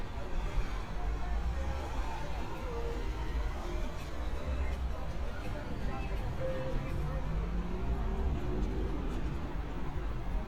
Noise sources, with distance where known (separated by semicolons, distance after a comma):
music from a moving source